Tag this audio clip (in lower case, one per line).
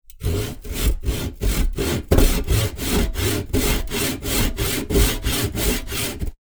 wood
tools
sawing